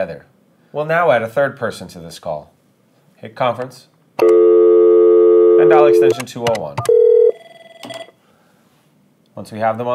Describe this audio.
A man speaking and a dial tone, dialing